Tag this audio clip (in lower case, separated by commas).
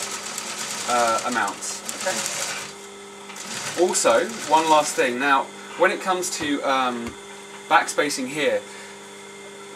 speech, sewing machine